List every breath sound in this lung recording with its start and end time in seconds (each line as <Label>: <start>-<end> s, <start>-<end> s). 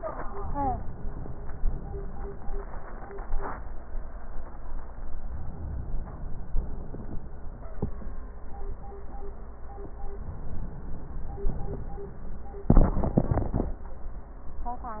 Inhalation: 5.24-6.51 s, 10.17-11.44 s